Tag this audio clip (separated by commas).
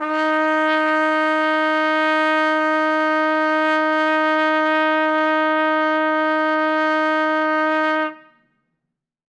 Brass instrument, Musical instrument, Music, Trumpet